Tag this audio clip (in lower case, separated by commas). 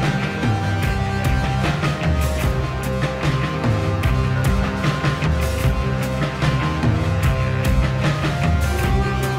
music